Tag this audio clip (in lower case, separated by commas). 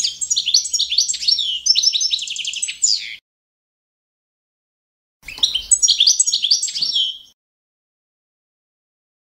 bird call, bird